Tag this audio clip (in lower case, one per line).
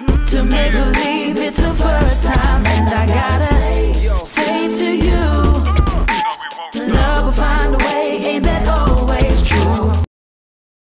music